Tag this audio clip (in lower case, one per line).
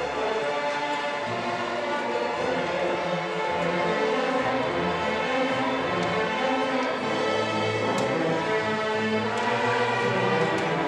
music
violin
musical instrument